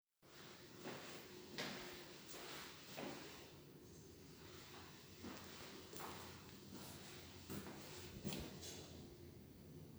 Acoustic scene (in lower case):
elevator